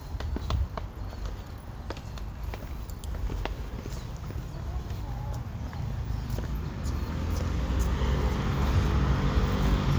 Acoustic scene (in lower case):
residential area